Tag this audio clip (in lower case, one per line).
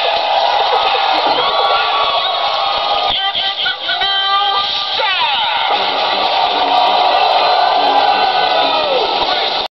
speech
music